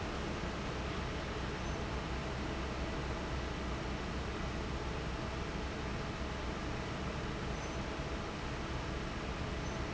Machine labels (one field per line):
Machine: fan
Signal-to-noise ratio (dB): -6 dB